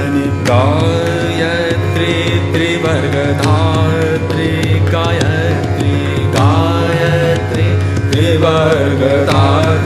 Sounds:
musical instrument, carnatic music, mantra, music, singing, music of asia

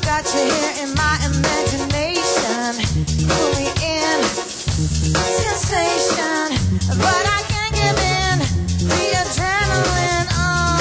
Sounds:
sound effect, music

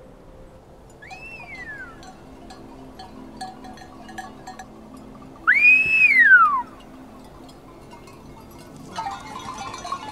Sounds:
people whistling

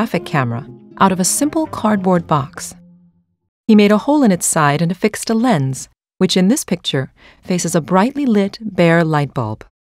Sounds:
music, speech

